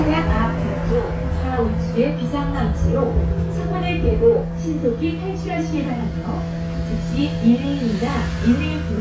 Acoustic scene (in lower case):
bus